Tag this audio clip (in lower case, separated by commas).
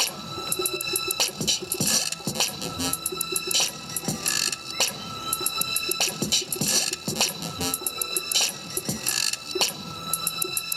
music